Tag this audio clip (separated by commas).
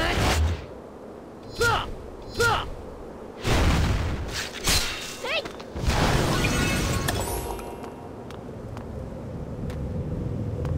Music, Speech